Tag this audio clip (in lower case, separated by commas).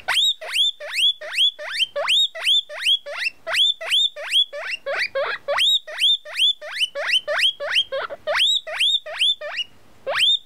animal, pets, pig